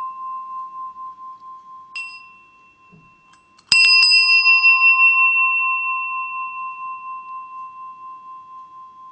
A bell softly chiming followed by a loud bell ringing